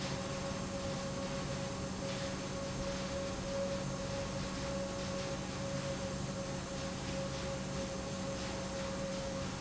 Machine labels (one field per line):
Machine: pump